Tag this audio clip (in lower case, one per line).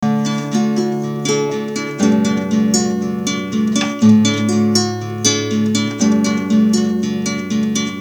acoustic guitar
musical instrument
guitar
music
plucked string instrument